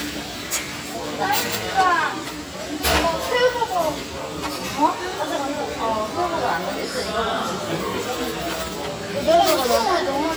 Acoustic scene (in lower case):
restaurant